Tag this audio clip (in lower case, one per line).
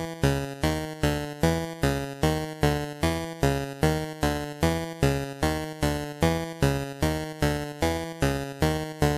music